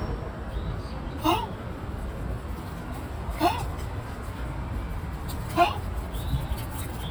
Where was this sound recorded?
in a park